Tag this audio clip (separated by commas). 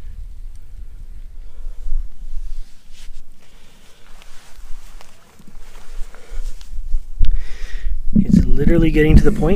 outside, rural or natural, Speech